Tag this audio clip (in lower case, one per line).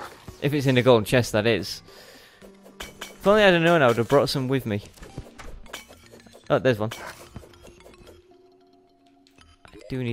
speech